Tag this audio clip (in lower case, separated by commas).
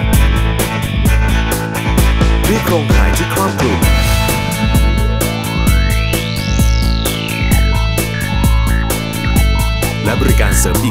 music, speech